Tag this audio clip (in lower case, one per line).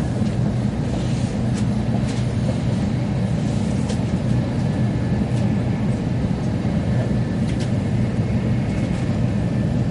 vehicle
train